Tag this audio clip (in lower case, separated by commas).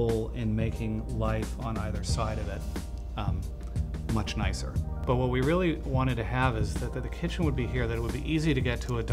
music, speech